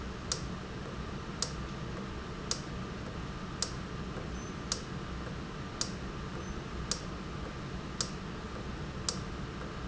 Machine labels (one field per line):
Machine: valve